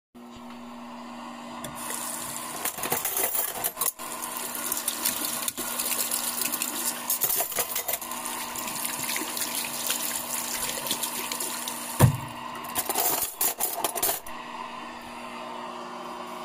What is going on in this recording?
Water was running in the sink while I rinsed dishes and cutlery. The microwave was running while cleaning the dishes with running water.